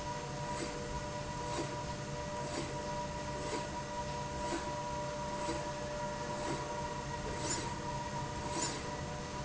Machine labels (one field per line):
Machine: slide rail